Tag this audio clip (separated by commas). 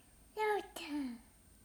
Child speech, Human voice, Speech